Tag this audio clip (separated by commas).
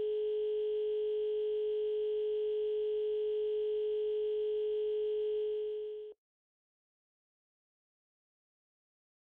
Sound effect